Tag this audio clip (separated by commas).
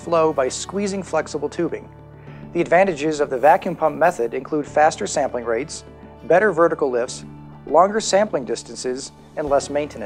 Music, Speech